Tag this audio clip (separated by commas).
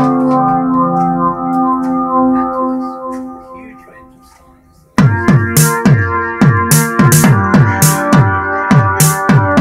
Musical instrument, Music